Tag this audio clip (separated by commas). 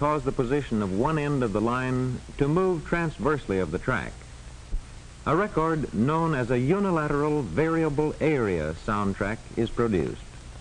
Speech